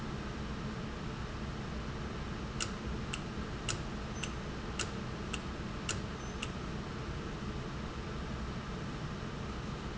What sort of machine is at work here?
valve